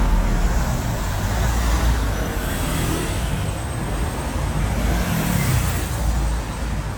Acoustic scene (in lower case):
street